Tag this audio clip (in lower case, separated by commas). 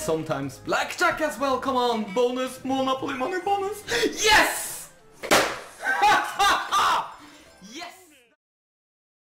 music, speech